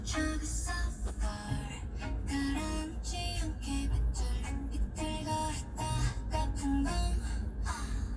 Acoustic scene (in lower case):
car